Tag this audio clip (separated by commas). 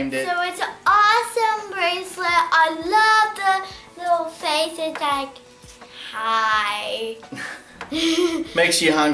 Child speech, inside a small room, Music, Speech